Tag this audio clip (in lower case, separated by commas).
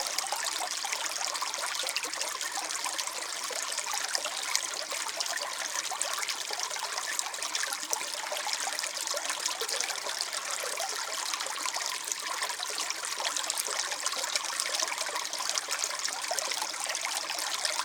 water, stream